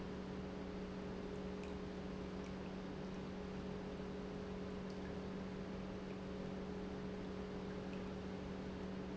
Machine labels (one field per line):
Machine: pump